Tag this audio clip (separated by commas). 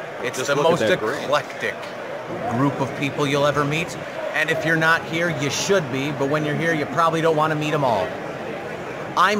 Speech